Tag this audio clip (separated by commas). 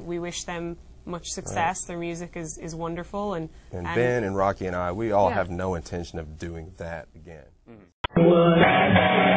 Speech, inside a large room or hall, Music